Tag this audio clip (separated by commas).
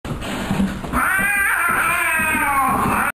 Cat, Animal, pets